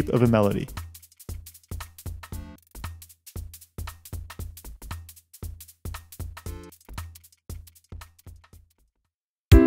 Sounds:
speech, soundtrack music, music

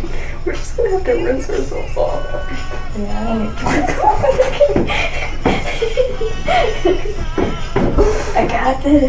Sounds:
speech, music

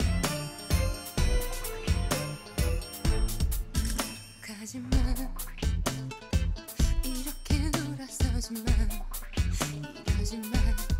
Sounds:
jingle

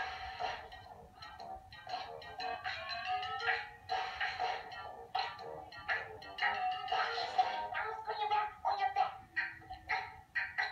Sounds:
speech, music

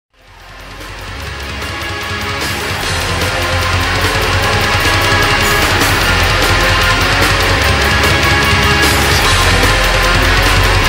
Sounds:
music, angry music

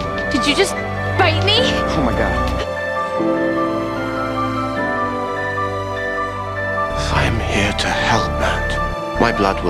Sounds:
background music

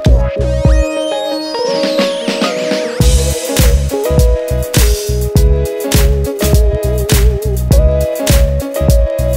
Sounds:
music

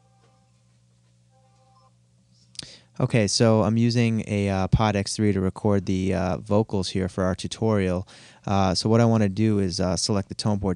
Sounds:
speech

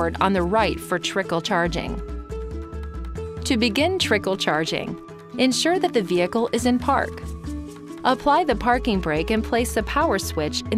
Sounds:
music, speech

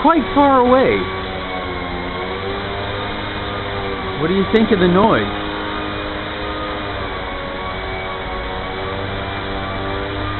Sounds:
speech

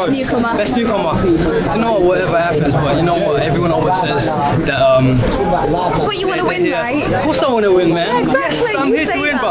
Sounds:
speech

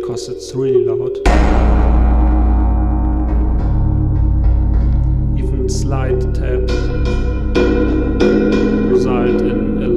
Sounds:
drum kit, music, musical instrument, cymbal, speech, reverberation

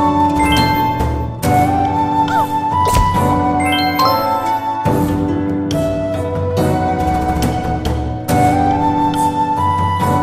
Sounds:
music, wedding music

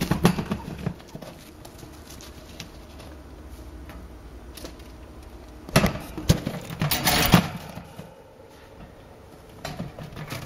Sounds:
chinchilla barking

